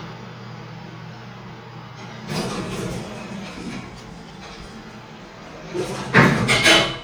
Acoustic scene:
elevator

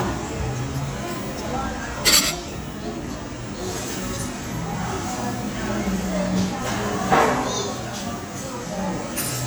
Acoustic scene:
cafe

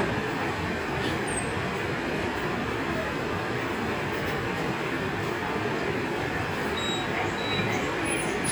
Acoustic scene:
subway station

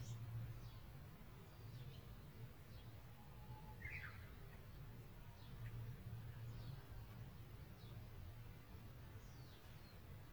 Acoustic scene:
park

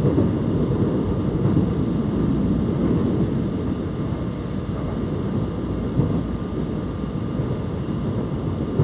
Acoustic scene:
subway train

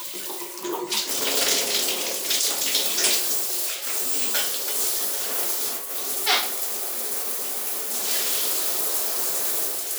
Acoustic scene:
restroom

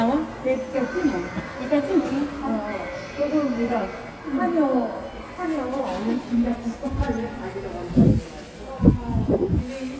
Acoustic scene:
subway station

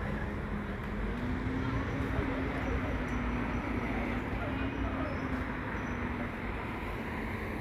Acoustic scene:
street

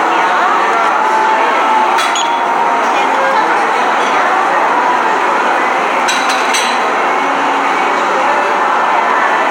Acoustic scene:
cafe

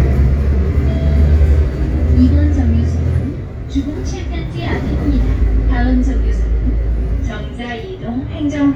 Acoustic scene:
bus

